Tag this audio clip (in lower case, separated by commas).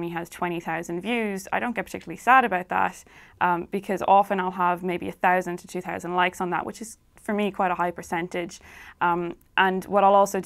speech